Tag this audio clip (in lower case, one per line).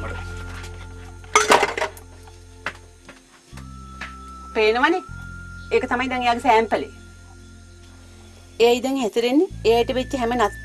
music
speech
inside a small room